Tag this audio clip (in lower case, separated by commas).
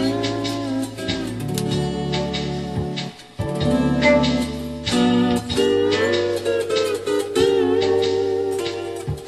country, music